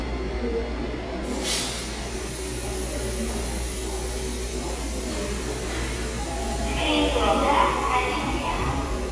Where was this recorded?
in a subway station